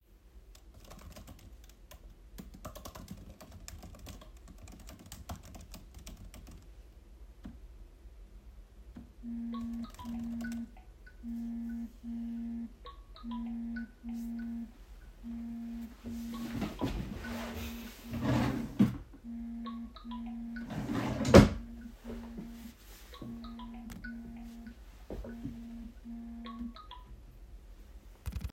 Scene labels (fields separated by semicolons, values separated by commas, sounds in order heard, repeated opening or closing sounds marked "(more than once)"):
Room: bedroom; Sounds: keyboard typing, phone ringing, wardrobe or drawer